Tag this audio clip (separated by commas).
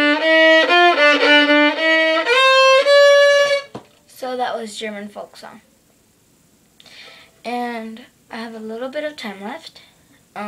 Music, Speech, Musical instrument, Violin